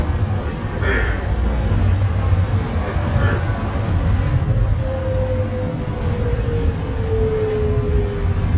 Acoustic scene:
bus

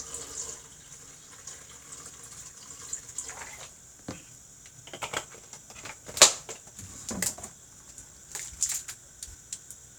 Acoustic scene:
kitchen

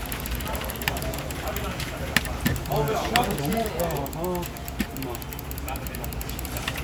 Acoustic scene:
crowded indoor space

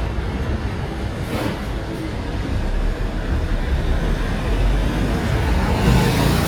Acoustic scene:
street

